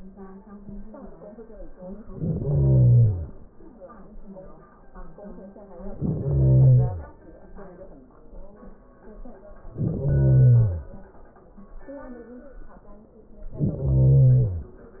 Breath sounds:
1.90-3.40 s: inhalation
5.73-7.23 s: inhalation
9.62-11.11 s: inhalation
13.36-14.78 s: inhalation

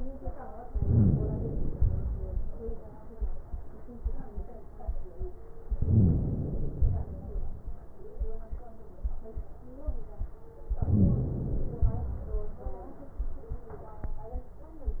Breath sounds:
0.68-1.73 s: inhalation
1.75-2.79 s: exhalation
5.70-6.74 s: inhalation
6.75-7.79 s: exhalation
10.77-11.82 s: inhalation
11.84-12.88 s: exhalation

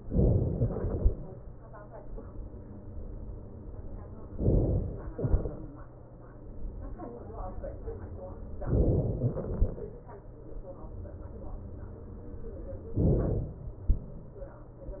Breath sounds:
0.00-0.96 s: inhalation
4.41-5.11 s: inhalation
5.11-6.74 s: exhalation
8.67-9.57 s: inhalation
13.00-13.90 s: inhalation

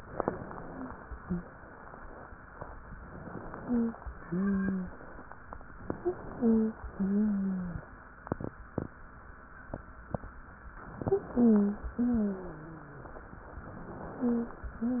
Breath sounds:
2.97-4.00 s: inhalation
3.61-3.97 s: wheeze
4.08-5.24 s: exhalation
4.22-4.91 s: wheeze
5.80-6.83 s: inhalation
5.96-6.21 s: wheeze
6.37-6.72 s: wheeze
6.87-7.89 s: exhalation
6.95-7.84 s: wheeze
10.88-11.91 s: inhalation
11.04-11.29 s: wheeze
11.32-11.82 s: wheeze
11.93-13.63 s: exhalation
11.97-13.12 s: wheeze
13.65-14.70 s: inhalation
14.21-14.55 s: wheeze
14.72-15.00 s: exhalation
14.72-15.00 s: wheeze

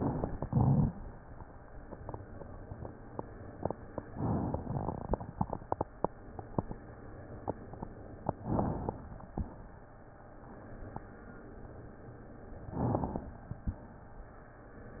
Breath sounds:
4.06-4.63 s: inhalation
4.62-5.88 s: exhalation
4.62-5.88 s: crackles
8.39-9.30 s: inhalation
8.39-9.30 s: crackles
9.28-10.26 s: exhalation
12.58-13.47 s: crackles
12.63-13.49 s: inhalation
13.51-14.37 s: exhalation

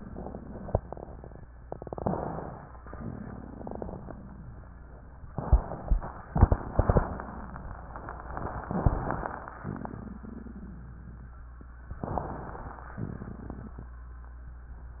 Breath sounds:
1.99-2.77 s: inhalation
2.91-4.70 s: exhalation
2.91-4.70 s: crackles
9.64-11.43 s: exhalation
9.64-11.43 s: crackles
11.99-12.93 s: inhalation
12.97-13.91 s: exhalation
12.97-13.92 s: crackles

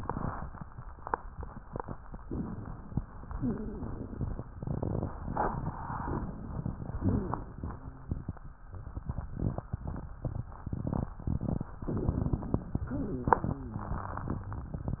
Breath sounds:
2.18-3.27 s: inhalation
3.34-3.90 s: rhonchi
3.34-4.42 s: exhalation
6.07-6.95 s: inhalation
7.02-8.07 s: exhalation
7.02-8.68 s: wheeze
11.92-12.89 s: inhalation
12.94-15.00 s: exhalation
12.94-15.00 s: wheeze

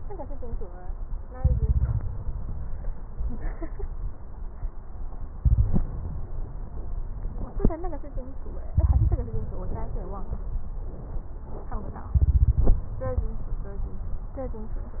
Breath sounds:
1.35-2.89 s: inhalation
1.35-2.89 s: crackles
5.40-6.26 s: inhalation
5.40-6.26 s: crackles
8.71-10.10 s: inhalation
8.71-10.10 s: crackles
12.16-13.71 s: inhalation
12.16-13.71 s: crackles

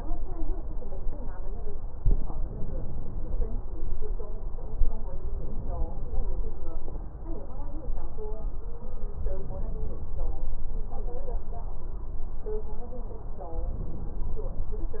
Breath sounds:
2.03-3.53 s: inhalation
5.31-6.65 s: inhalation
9.28-10.30 s: inhalation
13.85-14.87 s: inhalation

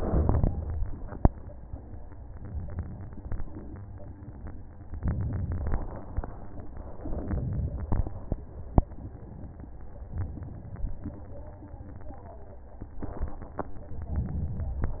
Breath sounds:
0.00-0.50 s: inhalation
5.00-5.80 s: inhalation
7.10-7.90 s: inhalation
14.20-15.00 s: inhalation

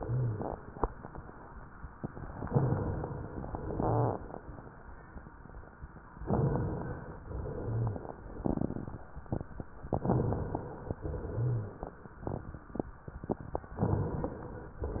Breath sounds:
0.00-0.40 s: rhonchi
2.44-3.31 s: inhalation
2.45-3.30 s: crackles
3.31-6.17 s: exhalation
6.21-7.22 s: inhalation
6.21-7.21 s: crackles
7.26-9.84 s: exhalation
7.62-7.99 s: rhonchi
9.88-10.96 s: crackles
9.90-10.94 s: inhalation
11.01-13.71 s: exhalation
11.35-11.72 s: rhonchi
13.77-14.79 s: inhalation
14.86-15.00 s: exhalation

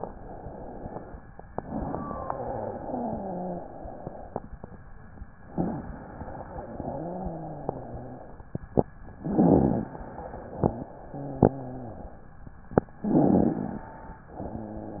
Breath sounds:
2.09-3.63 s: wheeze
5.56-6.50 s: inhalation
6.55-8.36 s: exhalation
6.75-8.34 s: wheeze
9.20-9.96 s: inhalation
9.20-9.96 s: rhonchi
9.98-12.31 s: exhalation
11.10-12.31 s: wheeze
13.02-13.91 s: inhalation
13.02-13.91 s: rhonchi
14.38-15.00 s: wheeze

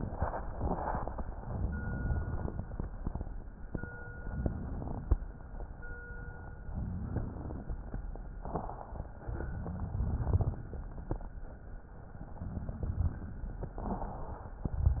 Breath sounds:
1.46-2.52 s: crackles
1.50-2.54 s: inhalation
4.14-5.18 s: inhalation
4.14-5.20 s: crackles
6.72-7.78 s: crackles
6.74-7.78 s: inhalation
9.22-10.53 s: crackles
9.26-10.57 s: inhalation
12.47-13.78 s: inhalation
12.47-13.78 s: crackles

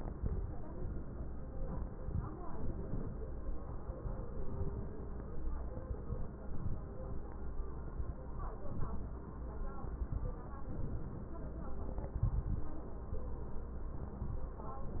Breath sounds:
2.49-3.19 s: inhalation
10.70-11.40 s: inhalation

